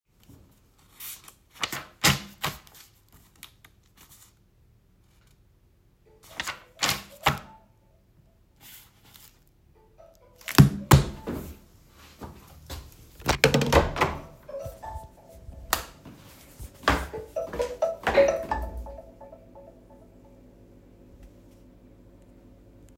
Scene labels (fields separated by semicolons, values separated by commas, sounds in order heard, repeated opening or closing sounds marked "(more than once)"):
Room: living room; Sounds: phone ringing, door (more than once), footsteps, light switch